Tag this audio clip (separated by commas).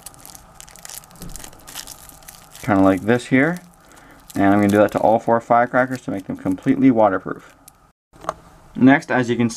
Speech, crinkling